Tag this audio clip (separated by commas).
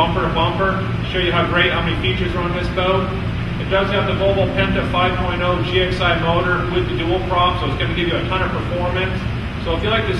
Speech